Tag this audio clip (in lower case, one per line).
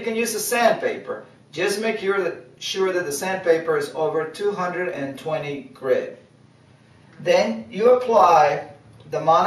speech